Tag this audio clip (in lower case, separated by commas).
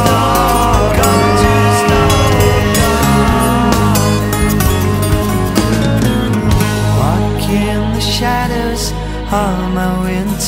music, independent music